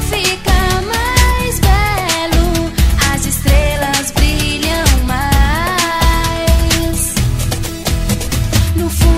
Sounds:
music

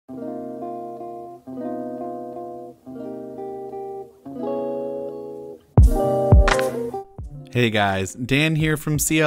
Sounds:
music
speech

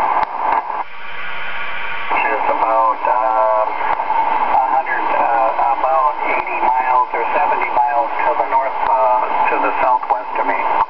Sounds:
speech
radio

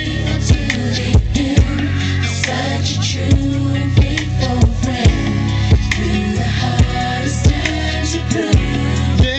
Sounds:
male singing
music

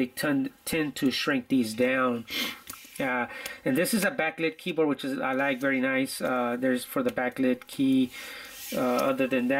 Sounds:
computer keyboard

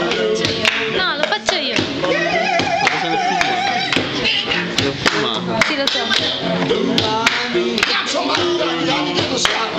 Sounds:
speech

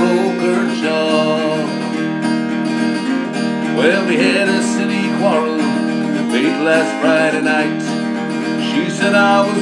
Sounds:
music

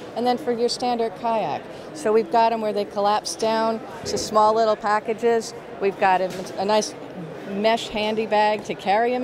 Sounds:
speech

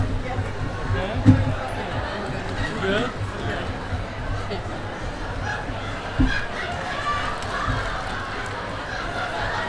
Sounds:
speech

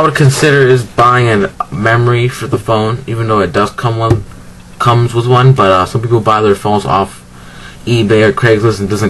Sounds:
speech

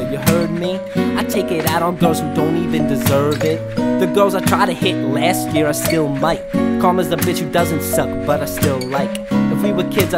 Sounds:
singing

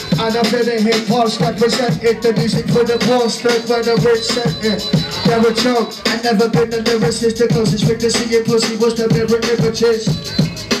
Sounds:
music

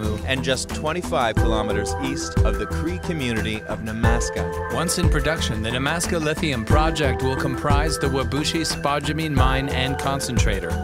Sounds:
music
speech

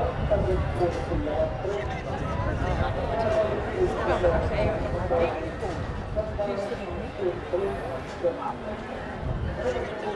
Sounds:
inside a public space
speech

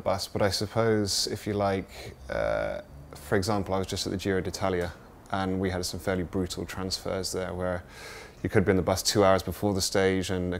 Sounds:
speech

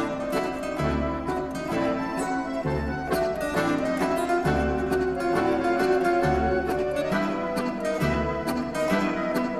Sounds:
playing zither

